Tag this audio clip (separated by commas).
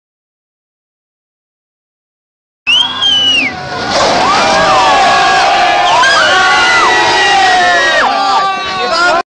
Vehicle, Speech, Car